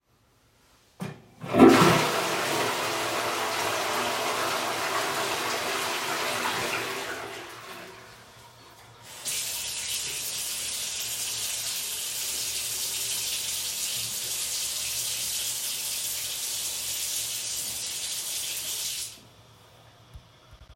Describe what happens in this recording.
The phone is placed on a shelf in the bathroom. The toilet is flushed and shortly afterwards the sink tap is turned on. Running water can be heard for several seconds.